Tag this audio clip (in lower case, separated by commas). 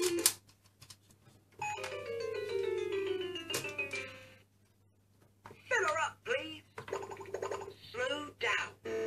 music, inside a small room, speech